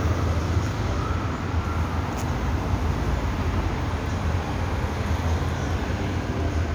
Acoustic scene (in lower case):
street